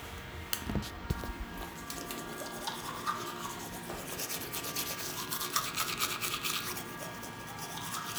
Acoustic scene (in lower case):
restroom